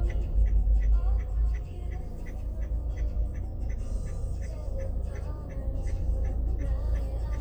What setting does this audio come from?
car